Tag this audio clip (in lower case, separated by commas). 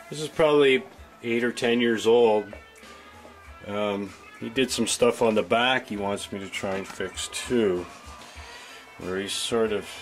speech, musical instrument, music, electric guitar, plucked string instrument, guitar